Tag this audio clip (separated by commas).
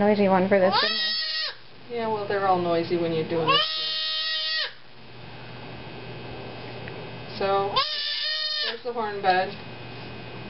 Speech, Animal, Goat